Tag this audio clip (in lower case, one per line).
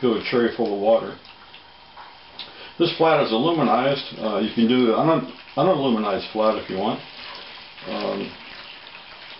inside a small room
bathtub (filling or washing)
speech
water